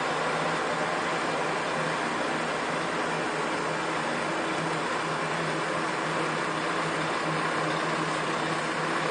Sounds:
vehicle
truck

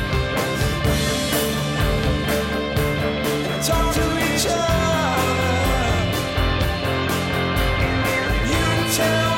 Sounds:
music
male singing

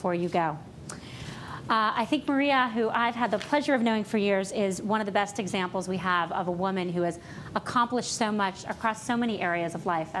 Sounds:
speech
female speech

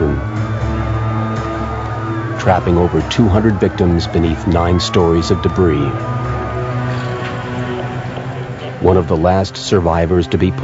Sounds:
music
speech

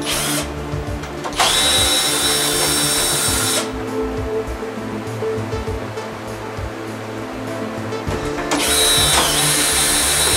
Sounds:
music

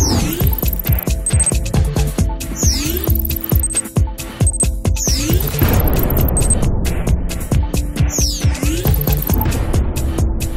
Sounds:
music

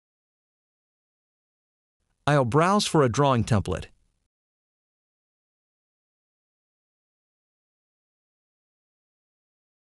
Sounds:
speech synthesizer

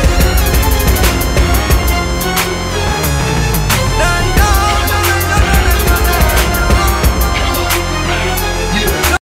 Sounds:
theme music
music

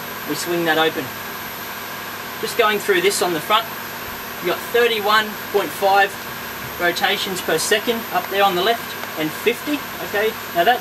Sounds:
speech

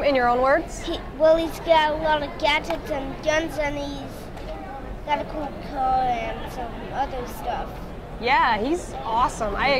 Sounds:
speech

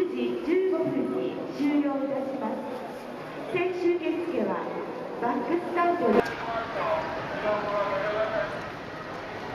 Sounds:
speech

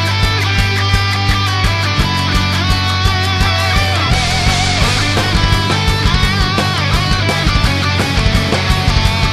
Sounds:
music

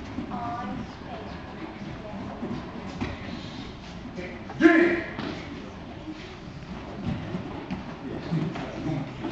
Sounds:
speech

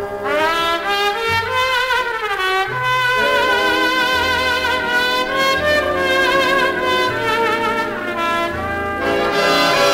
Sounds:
jazz
music
trombone

